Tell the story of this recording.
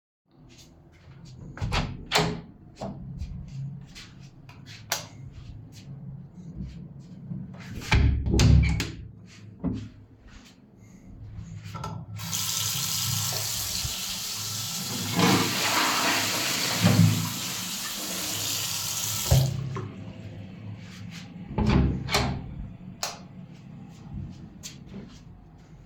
I walked to a bathroom door, opened it and entered. Then I turned the light on, closed the door and turn water on. While the water was running, I flushed the toilet. Then I turned water off, opened the door and turned the light off.